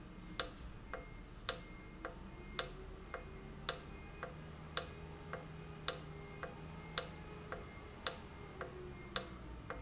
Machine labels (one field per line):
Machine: valve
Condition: normal